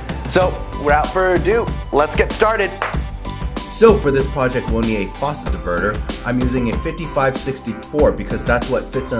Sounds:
Speech, Music

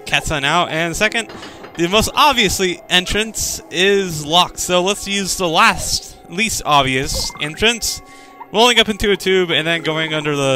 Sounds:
Speech

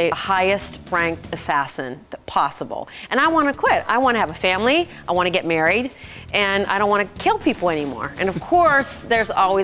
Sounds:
Music, Speech

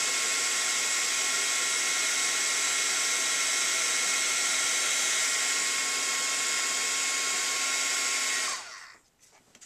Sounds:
Hair dryer

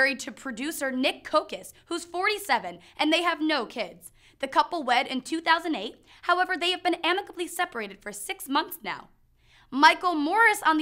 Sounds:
Speech

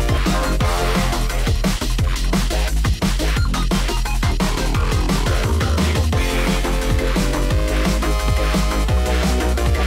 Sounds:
Music

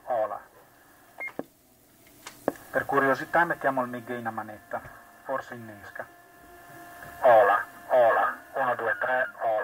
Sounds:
Radio, Speech

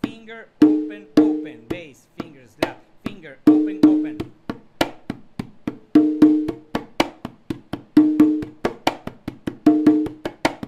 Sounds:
playing congas

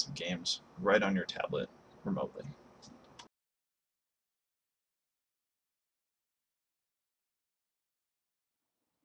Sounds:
Speech

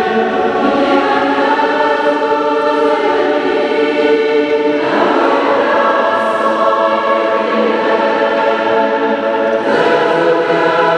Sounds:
Mantra

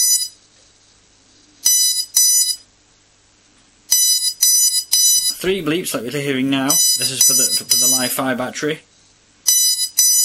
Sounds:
Speech

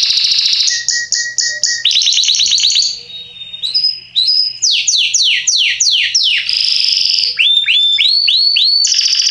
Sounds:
canary calling

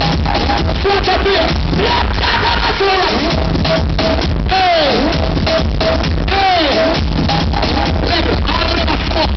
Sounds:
Speech, Music

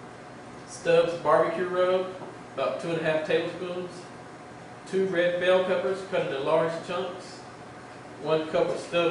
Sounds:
Speech

